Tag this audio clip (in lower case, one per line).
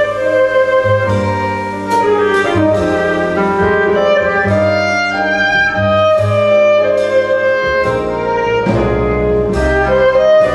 musical instrument
music
violin